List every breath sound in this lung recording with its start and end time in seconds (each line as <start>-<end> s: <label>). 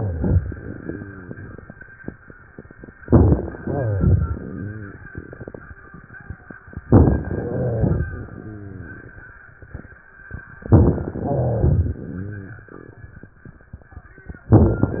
0.02-1.63 s: exhalation
0.02-1.63 s: rhonchi
3.02-3.61 s: inhalation
3.04-3.59 s: crackles
3.64-5.09 s: exhalation
3.64-5.09 s: rhonchi
6.85-7.53 s: inhalation
6.85-7.53 s: crackles
7.53-9.07 s: exhalation
7.53-9.07 s: rhonchi
10.59-11.31 s: inhalation
10.59-11.31 s: crackles
11.31-12.83 s: exhalation
11.31-12.83 s: rhonchi